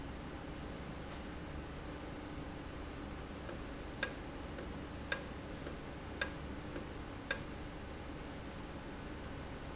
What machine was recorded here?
valve